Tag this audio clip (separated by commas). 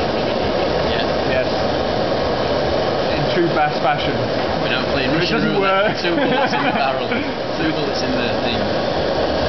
Speech, Idling, Medium engine (mid frequency), Engine